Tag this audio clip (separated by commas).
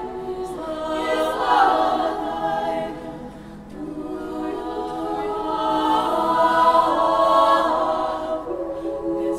Vocal music, Singing, A capella, Choir